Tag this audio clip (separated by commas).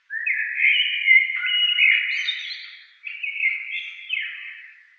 Wild animals, Animal, Bird